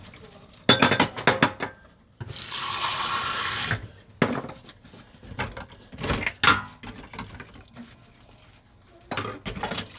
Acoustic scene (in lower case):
kitchen